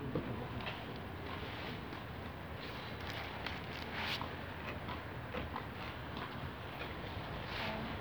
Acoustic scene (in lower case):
residential area